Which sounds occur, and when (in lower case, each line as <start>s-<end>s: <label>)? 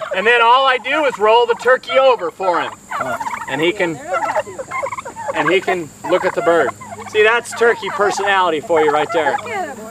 0.0s-2.7s: turkey
0.0s-9.9s: mechanisms
0.1s-2.7s: man speaking
0.8s-1.1s: surface contact
2.1s-2.4s: surface contact
2.9s-3.6s: turkey
2.9s-3.2s: man speaking
3.1s-3.4s: surface contact
3.4s-4.0s: man speaking
3.6s-4.9s: woman speaking
4.0s-5.8s: turkey
5.3s-5.9s: man speaking
5.6s-5.8s: human voice
6.0s-6.7s: man speaking
6.0s-8.2s: turkey
7.1s-9.9s: man speaking
8.6s-9.5s: turkey
9.2s-9.9s: woman speaking